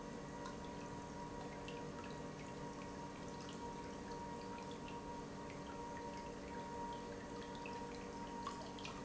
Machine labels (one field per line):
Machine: pump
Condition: normal